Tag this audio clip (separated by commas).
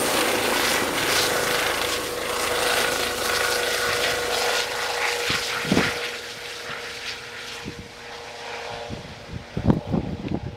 Vehicle, Aircraft, Helicopter